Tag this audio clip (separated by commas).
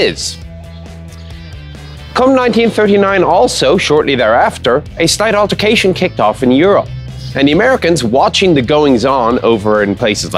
Speech, Music